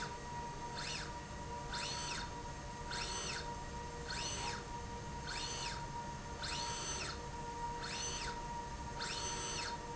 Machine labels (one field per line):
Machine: slide rail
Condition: normal